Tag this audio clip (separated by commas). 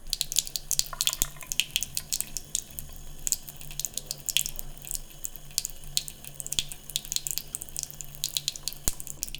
Domestic sounds, Sink (filling or washing)